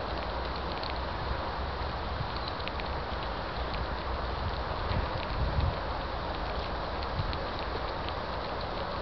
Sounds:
Biting, Clatter

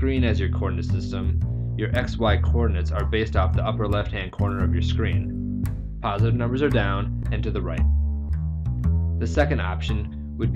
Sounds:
Music, Speech

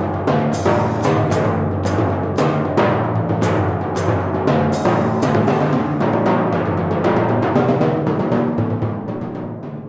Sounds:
playing tympani

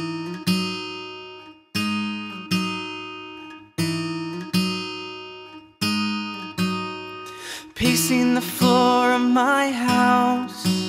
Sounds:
Music, Rhythm and blues, Blues

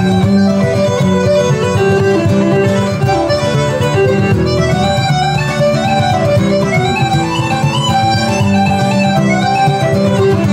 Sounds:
Traditional music, Music

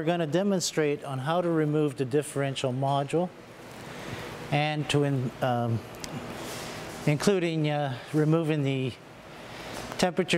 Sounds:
Speech

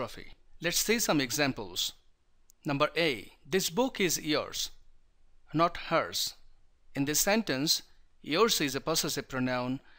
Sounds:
Speech

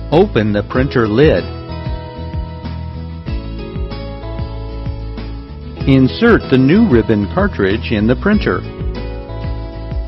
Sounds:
Speech, Music

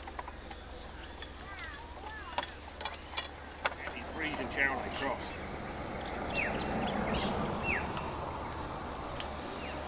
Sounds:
Speech, Animal

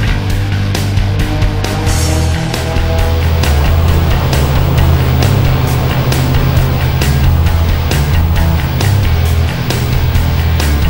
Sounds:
Music, Funk

